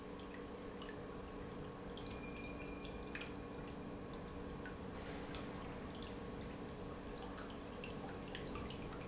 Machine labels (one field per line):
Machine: pump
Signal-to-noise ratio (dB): 6 dB